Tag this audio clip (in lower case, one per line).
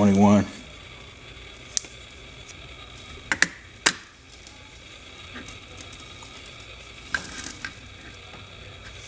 speech